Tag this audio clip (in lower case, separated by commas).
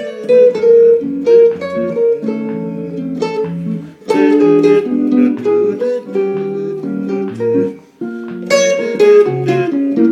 musical instrument, plucked string instrument, music, guitar, inside a small room